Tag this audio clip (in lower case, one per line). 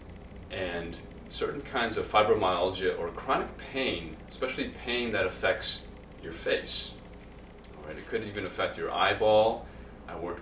speech